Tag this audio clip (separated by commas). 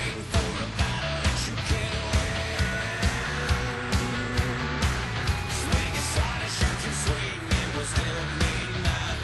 Musical instrument, Music, Guitar